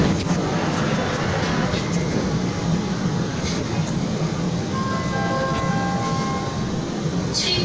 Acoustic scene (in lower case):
subway train